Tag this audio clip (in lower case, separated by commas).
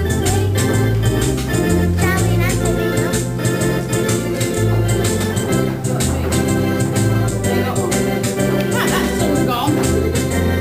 electronic organ, organ